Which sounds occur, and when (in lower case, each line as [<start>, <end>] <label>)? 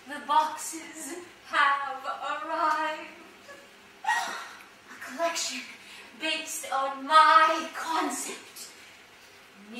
[0.00, 9.75] mechanisms
[8.49, 8.67] breathing
[9.52, 9.75] female speech